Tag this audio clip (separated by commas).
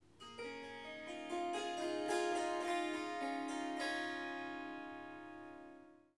Harp, Music, Musical instrument